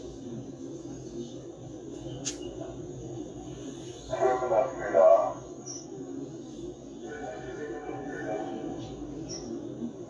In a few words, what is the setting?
subway train